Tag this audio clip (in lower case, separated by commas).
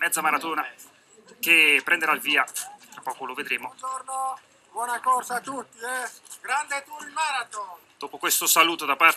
speech, outside, urban or man-made